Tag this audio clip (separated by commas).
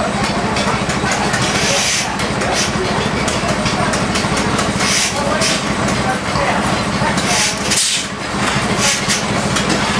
Speech, Heavy engine (low frequency), Idling, Engine